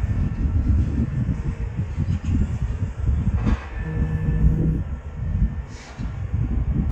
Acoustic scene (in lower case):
residential area